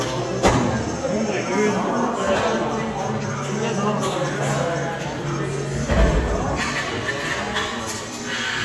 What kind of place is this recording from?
cafe